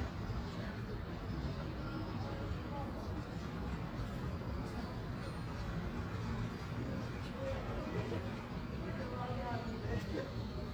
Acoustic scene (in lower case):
residential area